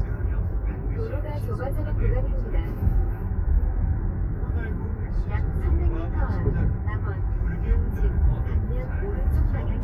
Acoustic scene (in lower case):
car